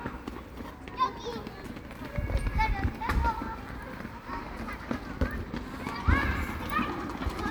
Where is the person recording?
in a park